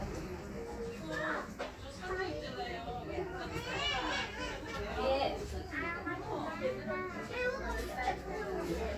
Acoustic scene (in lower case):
crowded indoor space